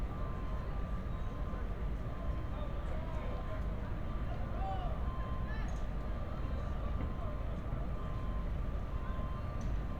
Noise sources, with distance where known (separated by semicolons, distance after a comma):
unidentified human voice, far